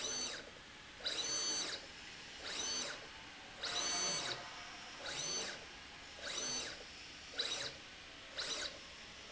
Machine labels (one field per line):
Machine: slide rail